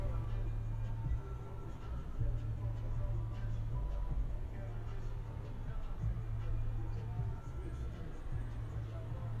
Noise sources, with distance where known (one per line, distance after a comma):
music from an unclear source, far